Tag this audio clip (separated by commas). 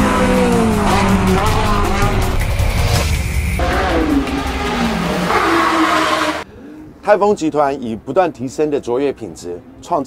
Vehicle, Car, Motor vehicle (road), auto racing, Speech